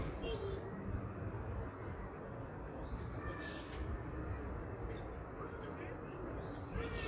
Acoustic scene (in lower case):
park